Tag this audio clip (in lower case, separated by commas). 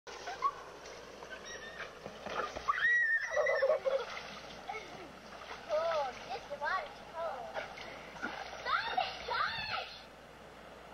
outside, rural or natural, speech